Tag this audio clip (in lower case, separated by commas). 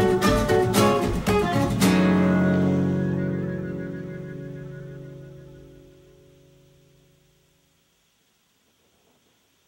music, double bass